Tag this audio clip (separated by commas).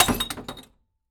Glass